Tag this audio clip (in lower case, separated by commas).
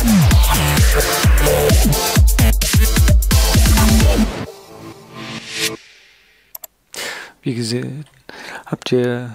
speech, music